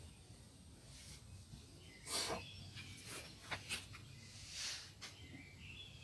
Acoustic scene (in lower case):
park